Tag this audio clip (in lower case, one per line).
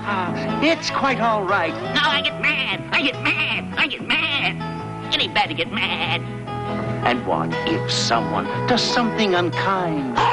speech
bleat
music